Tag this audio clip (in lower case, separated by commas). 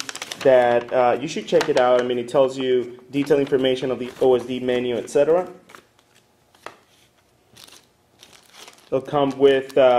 speech